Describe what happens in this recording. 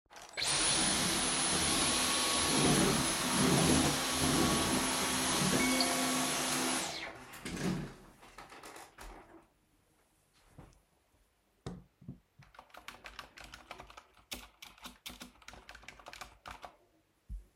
While I was vacuuming the floor, I received notification. I put down vacuum cleaner, went to the laptop and started typing.